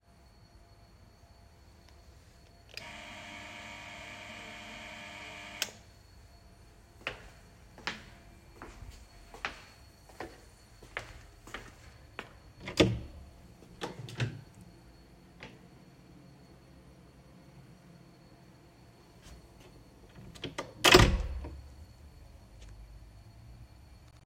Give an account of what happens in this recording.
I started recording near the front door and rang the doorbell clearly. I then walked down the hallway towards the door with clearly audible footsteps. I opened the front door slowly and then closed it again before stopping the recording.